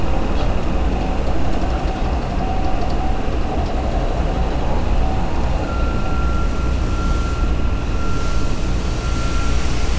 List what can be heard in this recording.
unidentified impact machinery